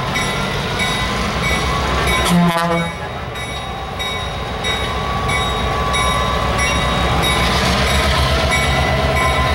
A bell is dinging consistently and a train horn is blown